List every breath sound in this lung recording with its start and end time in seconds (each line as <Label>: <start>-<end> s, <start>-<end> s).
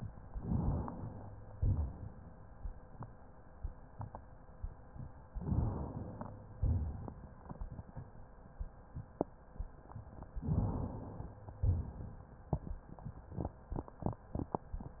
Inhalation: 0.32-1.42 s, 5.34-6.36 s, 10.46-11.42 s
Exhalation: 1.55-2.50 s, 6.60-7.30 s, 11.61-12.24 s